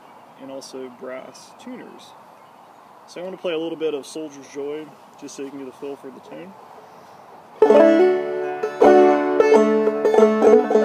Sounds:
Music, Banjo, Musical instrument, Plucked string instrument

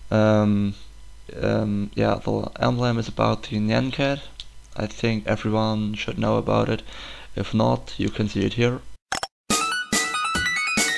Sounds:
Music, Speech

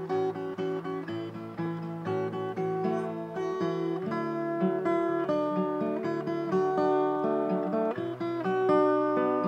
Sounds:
Musical instrument, Music, Acoustic guitar, Plucked string instrument, Guitar, Strum

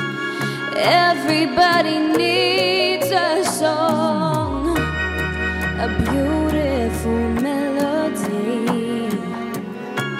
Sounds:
Music, Female singing

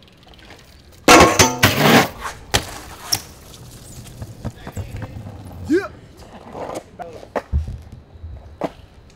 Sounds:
Vehicle, outside, urban or man-made, Speech, Bicycle

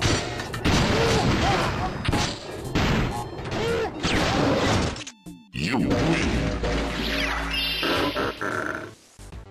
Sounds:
Speech, Music

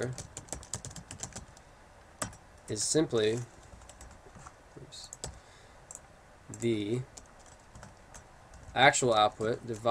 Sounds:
Speech, Computer keyboard

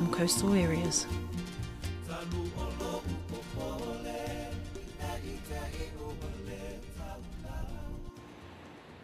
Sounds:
Speech, Music

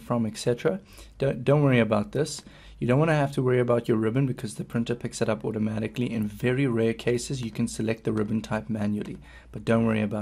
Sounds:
Speech

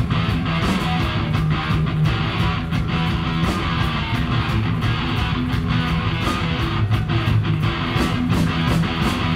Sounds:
Music

